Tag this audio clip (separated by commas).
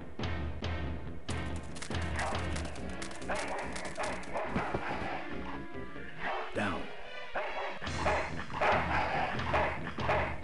Music, Speech